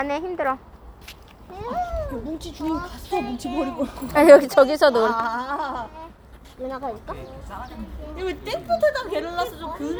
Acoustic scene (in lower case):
park